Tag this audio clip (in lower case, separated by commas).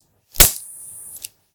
fire